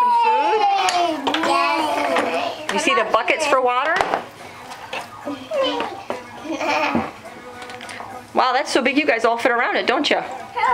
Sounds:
speech

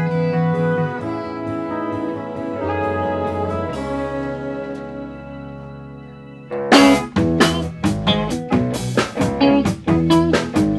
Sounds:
jazz
music

